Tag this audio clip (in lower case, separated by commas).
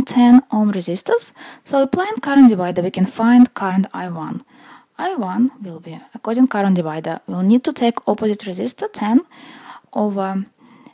speech